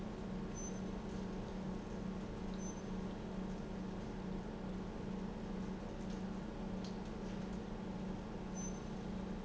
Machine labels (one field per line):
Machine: pump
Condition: normal